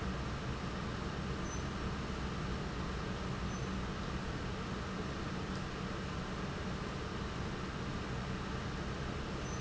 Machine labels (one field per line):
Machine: pump